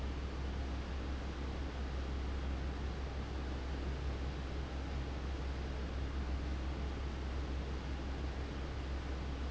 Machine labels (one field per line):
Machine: fan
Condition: abnormal